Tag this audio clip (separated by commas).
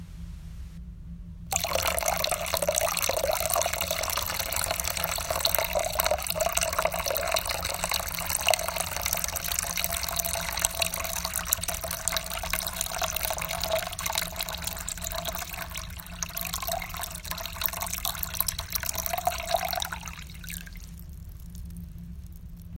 Liquid, Fill (with liquid), Trickle, Pour